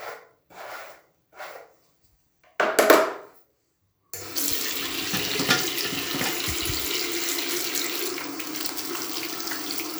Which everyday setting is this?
restroom